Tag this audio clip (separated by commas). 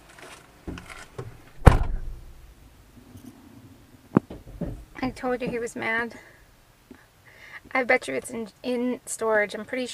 Speech